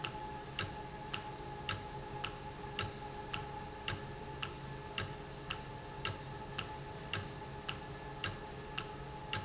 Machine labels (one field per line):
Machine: valve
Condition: normal